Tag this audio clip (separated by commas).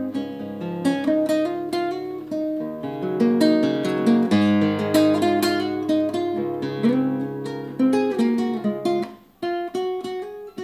Guitar, Plucked string instrument, Strum, Acoustic guitar, Musical instrument, Music